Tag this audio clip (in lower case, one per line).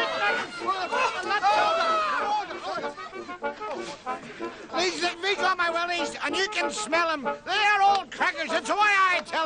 speech
music